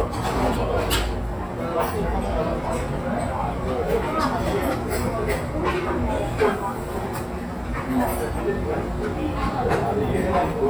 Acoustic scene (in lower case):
restaurant